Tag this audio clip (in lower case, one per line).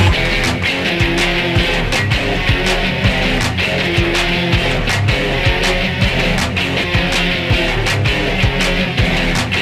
music